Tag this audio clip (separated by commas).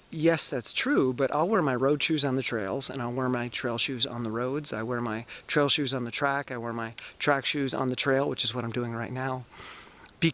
Speech